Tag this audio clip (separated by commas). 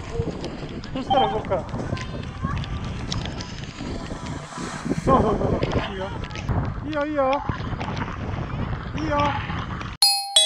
skiing